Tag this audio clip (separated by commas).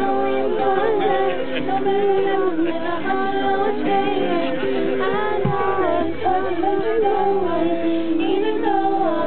Singing, Music, Speech